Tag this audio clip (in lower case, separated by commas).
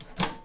home sounds, microwave oven